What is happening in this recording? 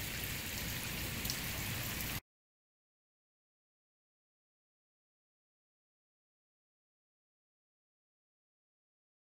Rain with a moderate intensity